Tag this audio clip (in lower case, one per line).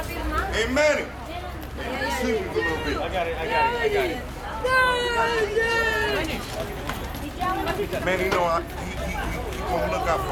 shout
speech